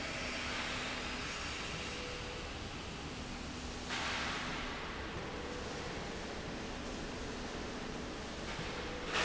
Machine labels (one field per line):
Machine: slide rail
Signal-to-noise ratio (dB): -6 dB